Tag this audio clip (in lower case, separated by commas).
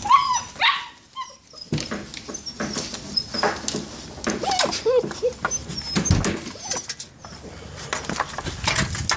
bow-wow, whimper (dog), animal, pets, dog bow-wow, bark, dog